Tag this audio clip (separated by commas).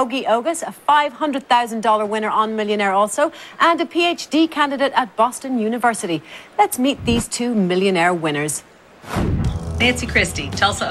Speech